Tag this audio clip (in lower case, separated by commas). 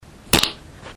fart